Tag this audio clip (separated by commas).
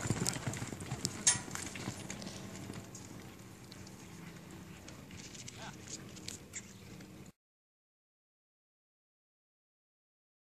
Clip-clop, Animal